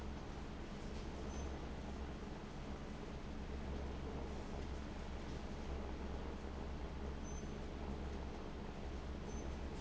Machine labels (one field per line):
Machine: fan